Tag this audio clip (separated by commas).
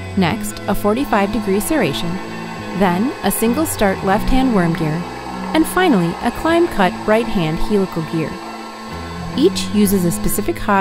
Music, Speech